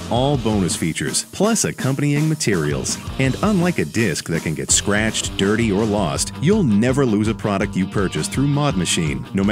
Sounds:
music, heavy metal, speech

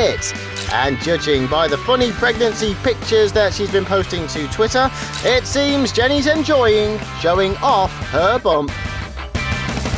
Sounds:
music, speech

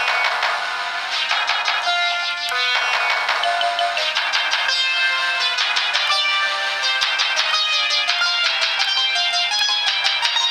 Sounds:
soundtrack music, music

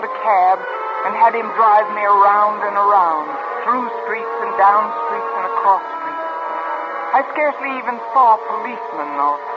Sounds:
music, radio, speech

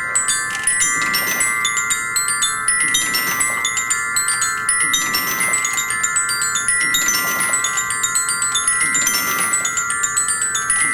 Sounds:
music, musical instrument

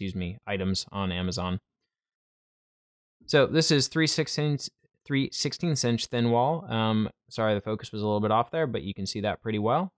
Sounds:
speech

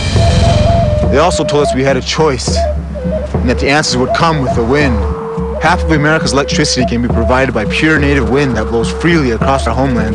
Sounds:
speech, music

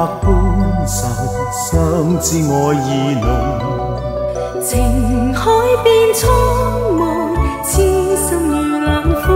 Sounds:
music, christmas music

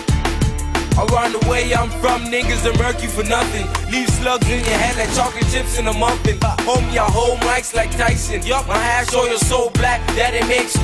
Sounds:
music

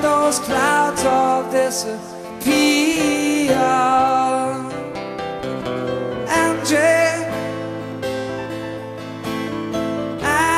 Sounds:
harpsichord

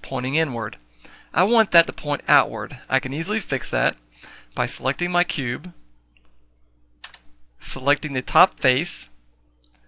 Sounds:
speech

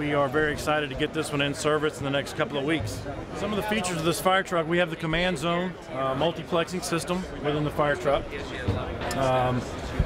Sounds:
speech

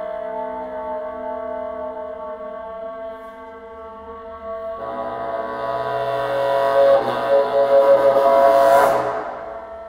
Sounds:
playing bassoon

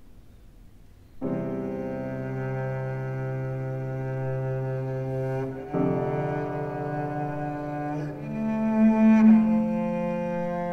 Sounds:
playing double bass

